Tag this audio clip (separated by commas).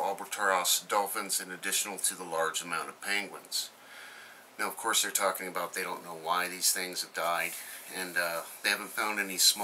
Speech